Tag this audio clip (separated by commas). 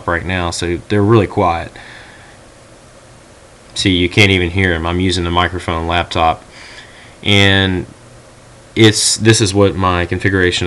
Speech